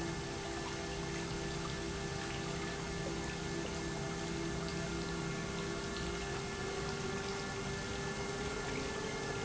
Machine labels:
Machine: pump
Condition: normal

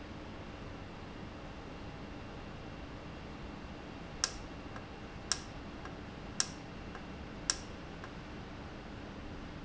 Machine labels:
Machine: valve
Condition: normal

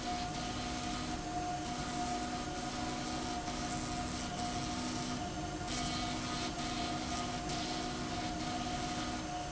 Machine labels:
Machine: slide rail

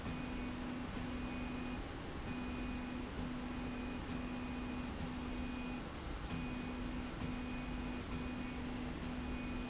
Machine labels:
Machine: slide rail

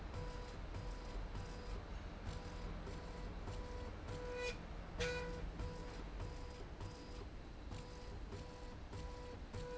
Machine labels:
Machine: slide rail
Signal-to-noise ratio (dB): 6 dB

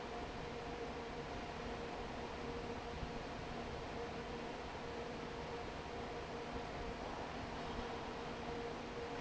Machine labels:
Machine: fan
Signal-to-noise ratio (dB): 6 dB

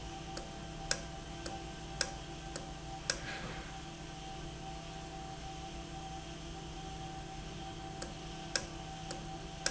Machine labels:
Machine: valve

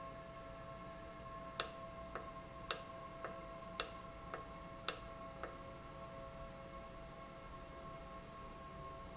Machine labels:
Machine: valve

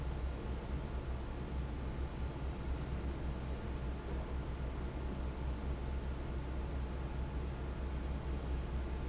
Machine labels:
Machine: fan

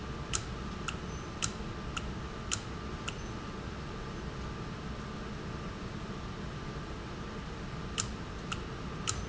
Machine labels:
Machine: valve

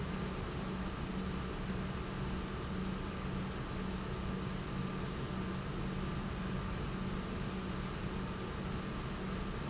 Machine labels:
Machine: pump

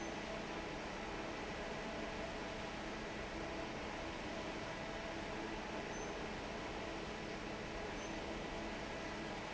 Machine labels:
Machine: fan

